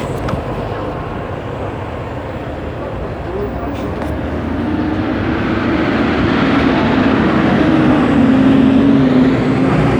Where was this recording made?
on a street